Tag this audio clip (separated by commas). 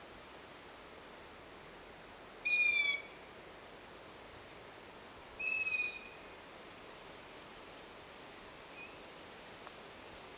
Owl